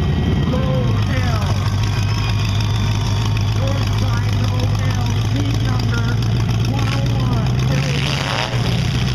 A man speaking, a crowd yelling and an engine revving